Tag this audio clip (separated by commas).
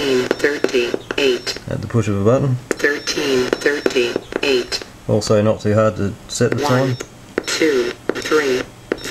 Radio, inside a small room, Speech